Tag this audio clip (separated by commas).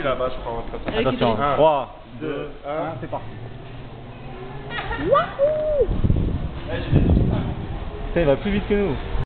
Speech